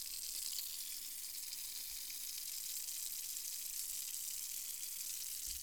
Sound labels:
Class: water tap